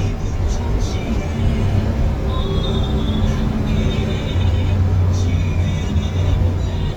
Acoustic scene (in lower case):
bus